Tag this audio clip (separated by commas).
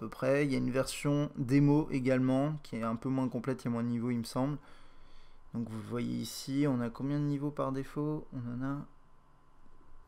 Speech